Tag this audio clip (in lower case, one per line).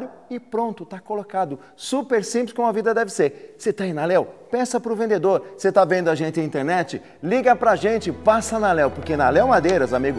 music
speech